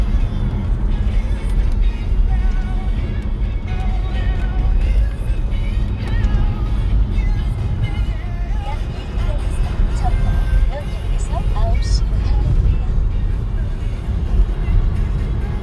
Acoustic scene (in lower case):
car